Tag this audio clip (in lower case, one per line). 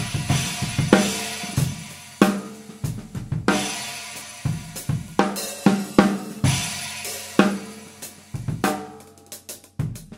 drum roll
music
musical instrument
drum kit
hi-hat
drum